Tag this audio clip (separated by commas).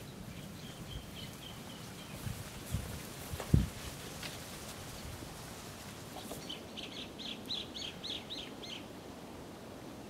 Chirp, outside, rural or natural, Bird vocalization